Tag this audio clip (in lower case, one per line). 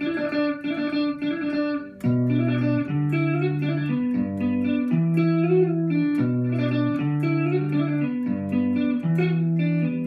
tapping guitar